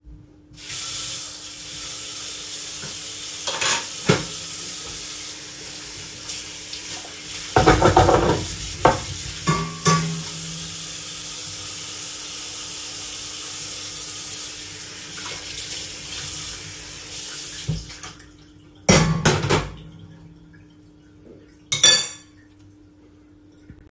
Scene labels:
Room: kitchen; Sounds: running water, cutlery and dishes

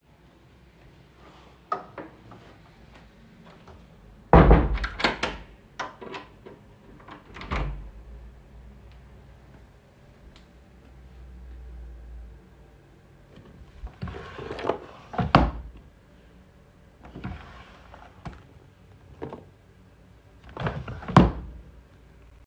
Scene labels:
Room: bedroom; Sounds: door (more than once), wardrobe or drawer

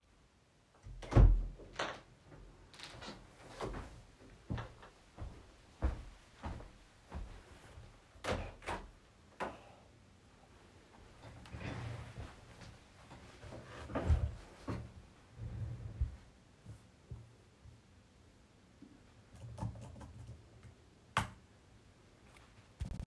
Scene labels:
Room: lavatory, office; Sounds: door, footsteps, window, keyboard typing

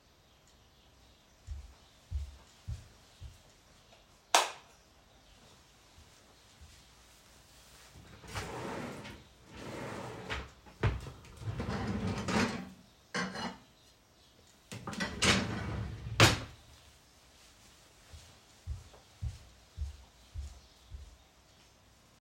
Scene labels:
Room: kitchen; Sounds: footsteps, light switch, wardrobe or drawer (more than once), cutlery and dishes

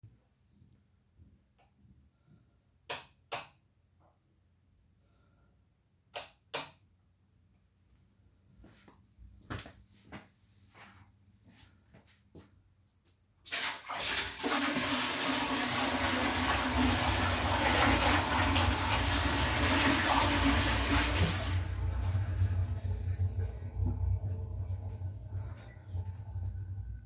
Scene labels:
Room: hallway, bathroom; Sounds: light switch, footsteps, running water

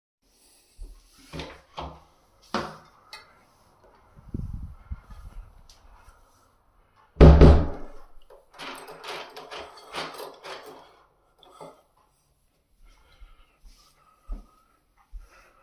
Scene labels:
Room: hallway; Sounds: footsteps, door (more than once), keys

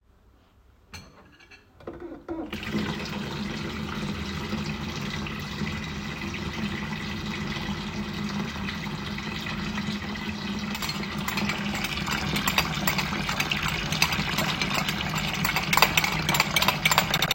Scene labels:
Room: kitchen; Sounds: cutlery and dishes, running water

